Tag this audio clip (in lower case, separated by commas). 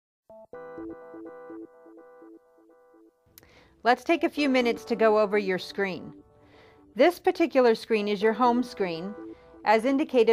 synthesizer